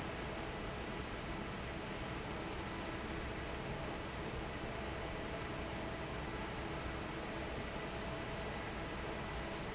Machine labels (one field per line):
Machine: fan